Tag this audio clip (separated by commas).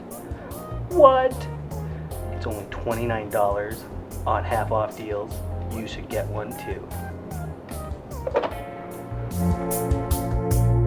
Music, Speech